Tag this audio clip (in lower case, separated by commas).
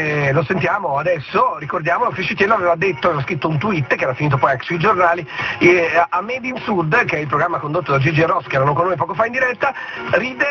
music, speech, radio